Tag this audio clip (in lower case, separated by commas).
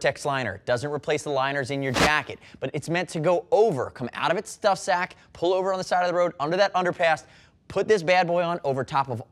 speech